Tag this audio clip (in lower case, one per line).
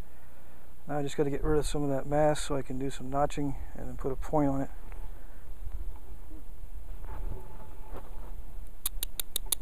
speech